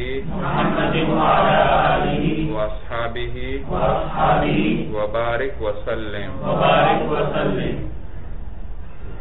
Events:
[0.00, 7.88] man speaking
[0.00, 9.20] background noise

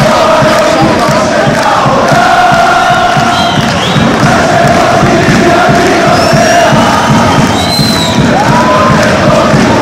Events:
[0.00, 9.81] choir
[0.00, 9.81] music
[3.20, 4.13] whistling
[7.51, 8.21] whistling

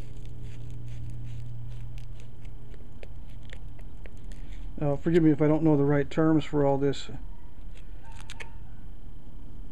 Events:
[0.00, 0.68] surface contact
[0.00, 9.71] mechanisms
[0.82, 1.48] surface contact
[1.62, 2.24] surface contact
[2.34, 2.46] tick
[2.65, 2.76] tick
[2.95, 3.09] tick
[3.19, 3.60] surface contact
[3.70, 3.81] tick
[3.97, 4.07] tick
[4.25, 4.64] surface contact
[4.75, 7.15] male speech
[7.11, 7.61] animal
[7.53, 7.85] generic impact sounds
[7.97, 8.75] animal
[8.05, 8.42] generic impact sounds

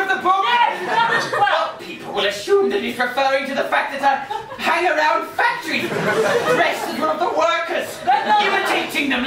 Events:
[0.00, 4.21] man speaking
[0.00, 9.25] background noise
[0.00, 9.25] conversation
[0.54, 1.42] laughter
[4.21, 4.65] laughter
[4.55, 5.86] man speaking
[5.42, 7.37] crowd
[5.55, 7.25] laughter
[6.42, 7.78] man speaking
[8.05, 9.25] man speaking
[8.35, 9.00] laughter

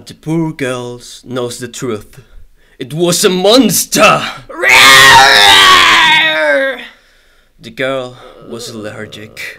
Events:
[0.00, 2.44] man speaking
[0.00, 9.55] background noise
[2.22, 2.42] breathing
[2.57, 2.78] breathing
[2.79, 4.48] man speaking
[4.51, 6.92] screaming
[6.92, 7.55] breathing
[7.64, 9.55] man speaking
[8.12, 9.55] grunt
[8.21, 8.44] breathing

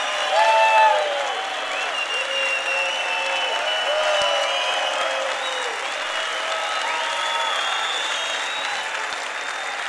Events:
[0.00, 1.40] shout
[0.00, 9.85] crowd
[1.21, 9.85] applause
[1.72, 5.74] whistling
[2.15, 5.77] whoop
[6.46, 8.84] whoop
[7.08, 8.90] whistling

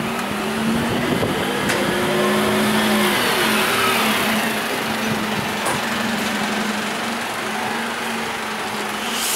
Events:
[0.00, 4.74] vroom
[0.00, 9.35] vehicle
[0.00, 9.35] wind
[1.62, 1.81] generic impact sounds

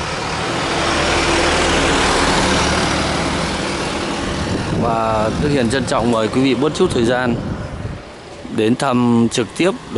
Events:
[0.00, 7.93] truck
[0.00, 9.95] wind
[4.38, 7.97] wind noise (microphone)
[4.72, 7.30] man speaking
[7.59, 7.69] bird song
[8.42, 9.95] man speaking
[8.49, 9.95] motorcycle

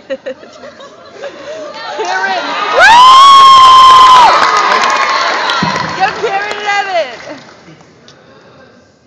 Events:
[0.00, 1.63] laughter
[0.00, 9.05] speech noise
[1.61, 2.56] female speech
[2.73, 6.29] crowd
[3.02, 6.11] clapping
[5.93, 7.44] female speech

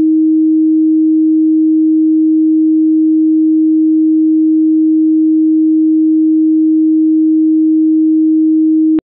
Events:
[0.00, 9.03] sine wave

